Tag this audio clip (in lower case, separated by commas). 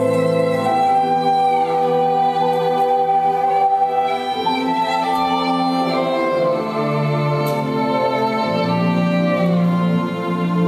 music